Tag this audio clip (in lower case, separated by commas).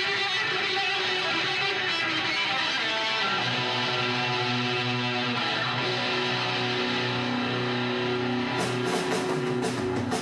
electric guitar, music, guitar, bass guitar, musical instrument, plucked string instrument